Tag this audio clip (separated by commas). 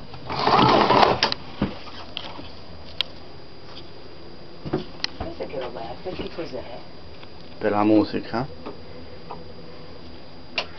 Speech, inside a small room